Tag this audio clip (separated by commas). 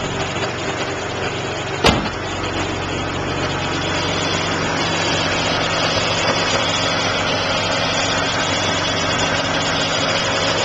Engine, Idling, Vehicle, Car